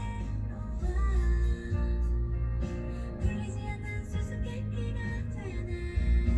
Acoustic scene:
car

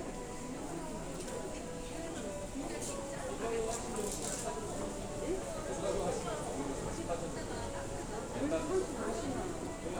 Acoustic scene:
crowded indoor space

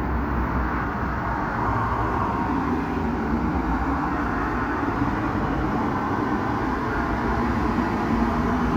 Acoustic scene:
street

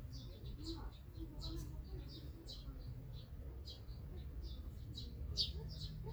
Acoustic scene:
park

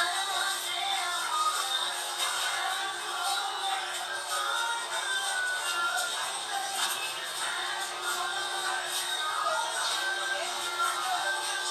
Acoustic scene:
crowded indoor space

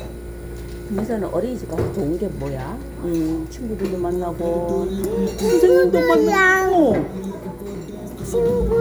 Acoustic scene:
restaurant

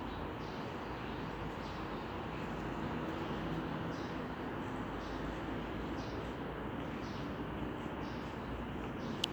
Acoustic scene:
residential area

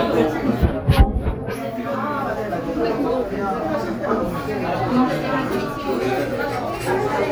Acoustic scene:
restaurant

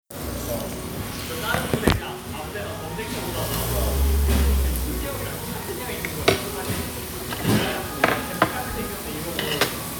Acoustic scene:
restaurant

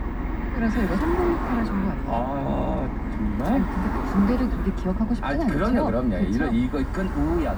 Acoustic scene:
car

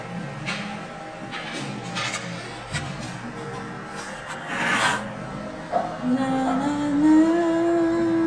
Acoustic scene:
cafe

